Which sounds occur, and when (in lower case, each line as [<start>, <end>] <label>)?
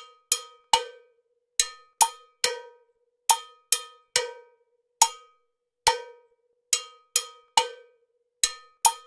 [0.00, 9.05] music